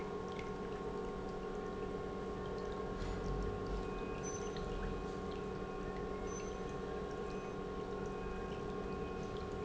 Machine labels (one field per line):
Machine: pump